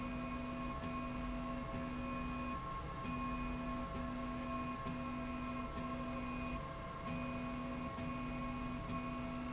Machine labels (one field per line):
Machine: slide rail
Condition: normal